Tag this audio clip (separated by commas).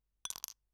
Glass